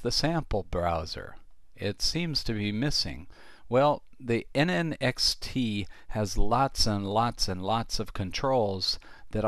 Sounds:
Speech

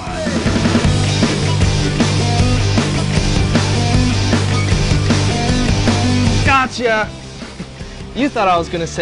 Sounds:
Music, Speech

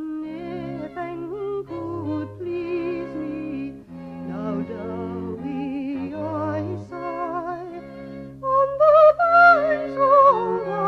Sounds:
Violin, Musical instrument, Music

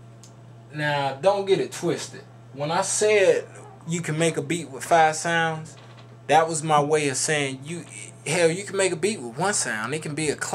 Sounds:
Speech

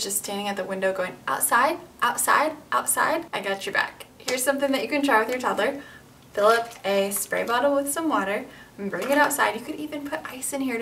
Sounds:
kid speaking

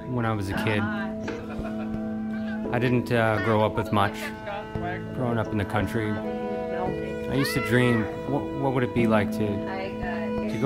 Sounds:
Music, Speech

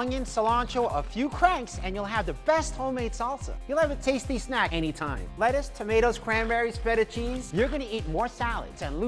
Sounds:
Music, Speech

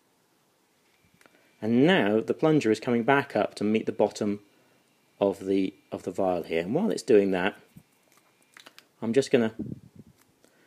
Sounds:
Speech

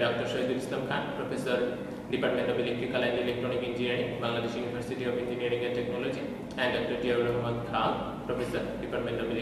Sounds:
Speech

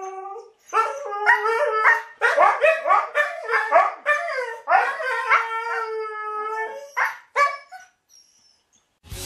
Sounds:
dog howling

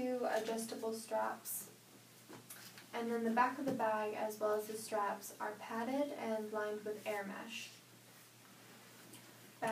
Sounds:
Speech

